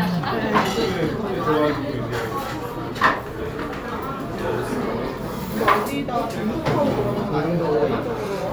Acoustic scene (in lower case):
restaurant